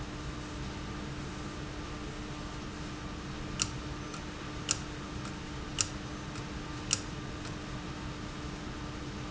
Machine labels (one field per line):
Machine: valve